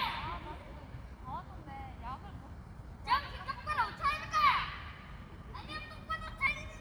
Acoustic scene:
park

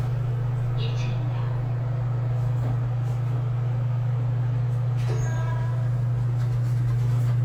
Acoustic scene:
elevator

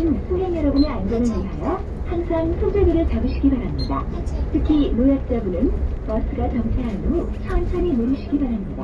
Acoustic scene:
bus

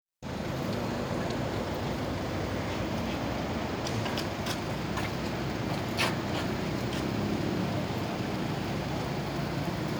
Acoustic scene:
street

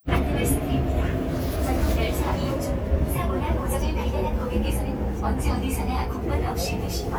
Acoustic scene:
subway train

